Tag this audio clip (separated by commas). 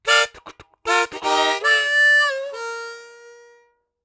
Music, Harmonica, Musical instrument